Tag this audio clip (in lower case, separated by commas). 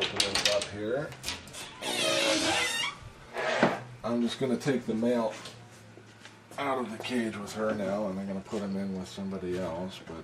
speech, inside a small room